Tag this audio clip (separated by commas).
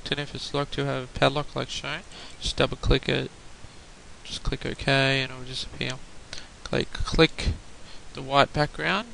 Speech